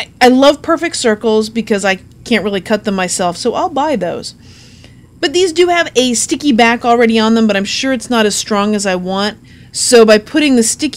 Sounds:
speech

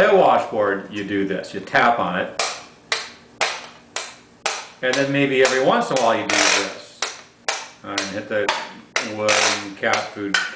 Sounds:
playing washboard

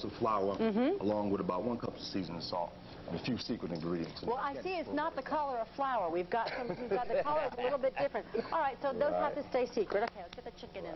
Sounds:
speech

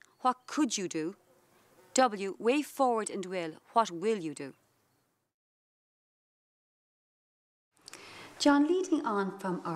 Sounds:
speech

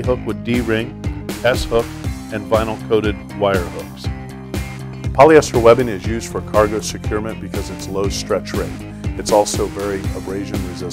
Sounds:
speech
music

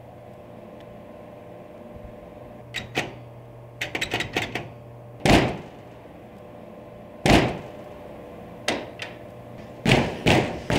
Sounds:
inside a small room

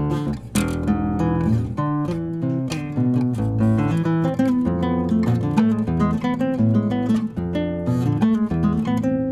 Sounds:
acoustic guitar
musical instrument
music
plucked string instrument
guitar

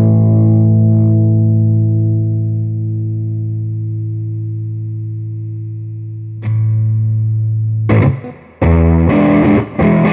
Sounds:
musical instrument
distortion
plucked string instrument
guitar
effects unit
music

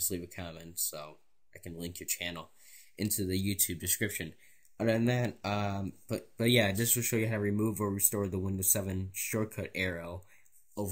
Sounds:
speech

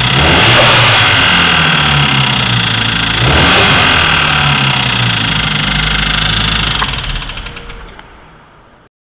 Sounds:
medium engine (mid frequency)
engine
vroom
vehicle
idling

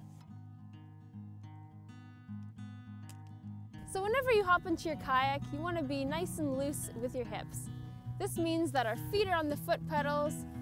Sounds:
speech
music

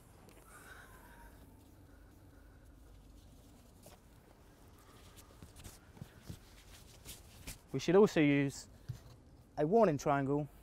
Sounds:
speech

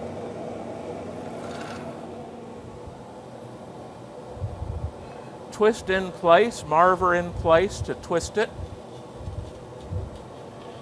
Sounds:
speech

